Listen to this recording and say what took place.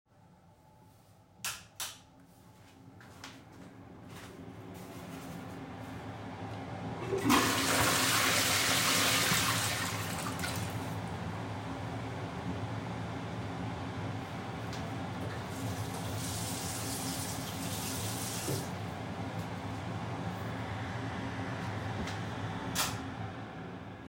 I entered the bathroom and turned on the light and air duct. I flushed the toilet and then turned on the sink water briefly. At the end the ventilation air duct was switched off.